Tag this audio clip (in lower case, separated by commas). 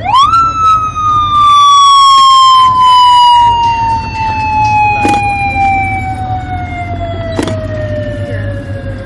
speech, outside, urban or man-made